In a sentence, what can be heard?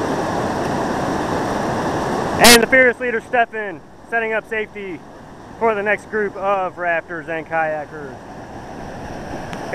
Water is rushing and splashing, and an adult male speaks